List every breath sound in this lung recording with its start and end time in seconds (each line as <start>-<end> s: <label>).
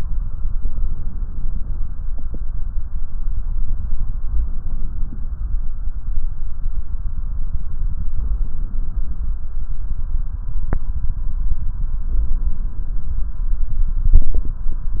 8.12-9.41 s: inhalation
12.09-13.38 s: inhalation